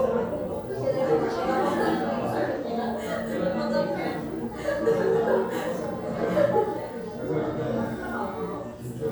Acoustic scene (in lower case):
crowded indoor space